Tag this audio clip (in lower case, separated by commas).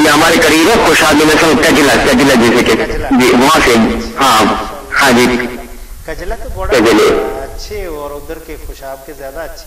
monologue, speech